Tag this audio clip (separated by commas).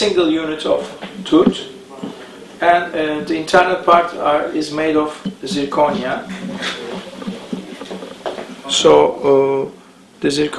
Speech